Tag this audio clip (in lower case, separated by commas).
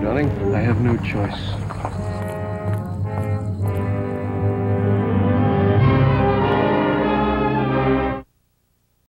music, television, speech